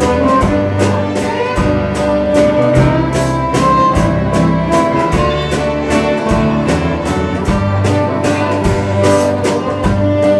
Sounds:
musical instrument
music
fiddle

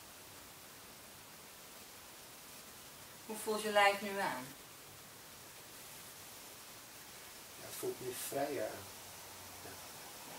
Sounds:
speech

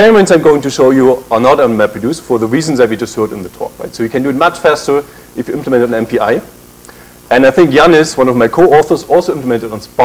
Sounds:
speech

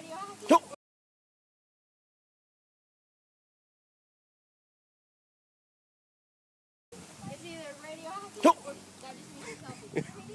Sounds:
speech

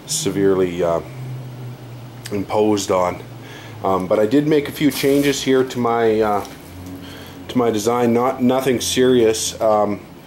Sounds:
speech

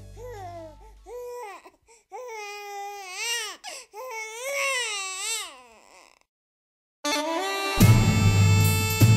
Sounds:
ambient music
electronic music
music

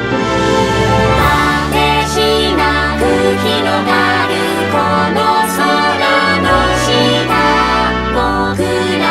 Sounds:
music

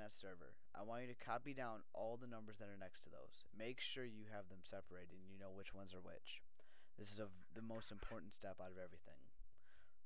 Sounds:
speech

